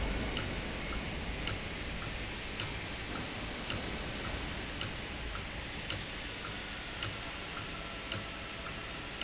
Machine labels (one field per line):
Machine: valve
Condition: abnormal